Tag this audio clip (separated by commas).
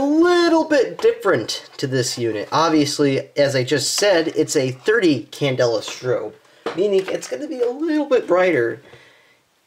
Speech